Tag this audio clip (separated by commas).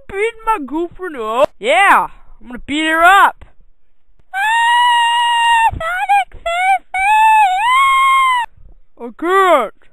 Speech